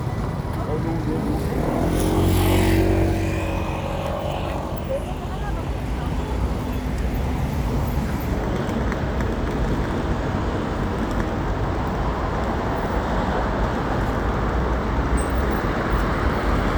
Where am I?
on a street